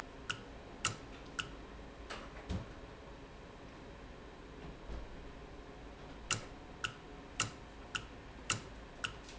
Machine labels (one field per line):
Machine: valve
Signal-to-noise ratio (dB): 6 dB